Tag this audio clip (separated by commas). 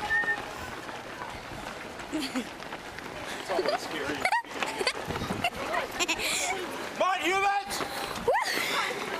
Speech, Run, outside, urban or man-made